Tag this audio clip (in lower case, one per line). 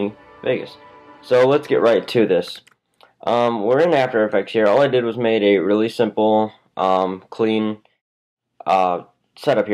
speech
music